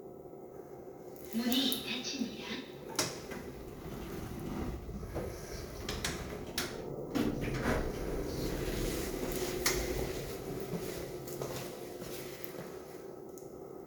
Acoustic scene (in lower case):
elevator